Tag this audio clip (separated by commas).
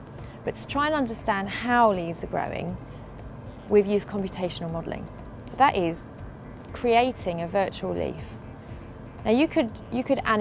Music, Speech